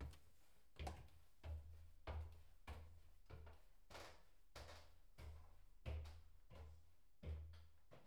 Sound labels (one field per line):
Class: footsteps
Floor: wooden floor